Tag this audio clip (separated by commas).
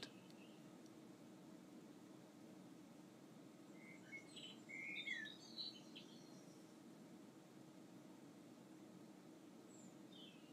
Bird vocalization, outside, rural or natural